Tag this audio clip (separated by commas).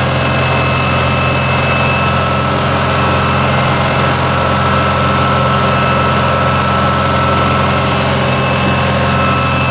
Motorboat, Water vehicle